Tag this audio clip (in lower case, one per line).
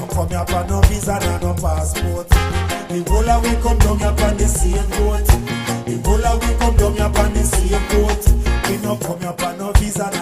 rhythm and blues
music